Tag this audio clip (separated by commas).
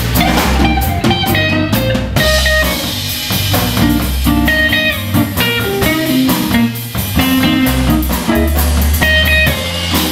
Drum, Percussion, Bass drum, Drum kit, Rimshot, Snare drum